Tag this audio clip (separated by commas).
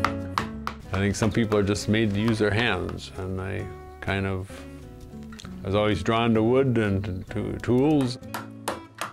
Speech, Music